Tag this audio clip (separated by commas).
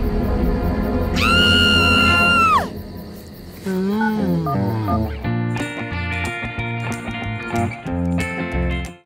Music